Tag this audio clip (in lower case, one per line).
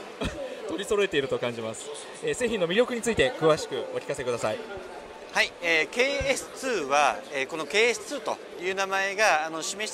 speech